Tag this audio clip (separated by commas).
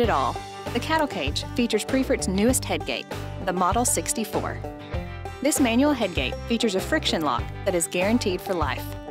Music, Speech